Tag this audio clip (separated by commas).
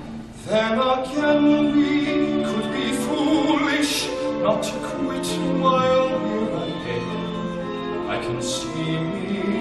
Music, Opera